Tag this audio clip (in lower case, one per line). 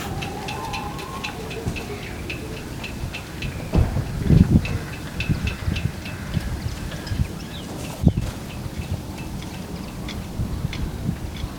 wind
boat
water
vehicle
ocean